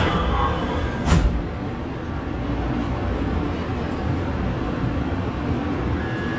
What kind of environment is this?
subway train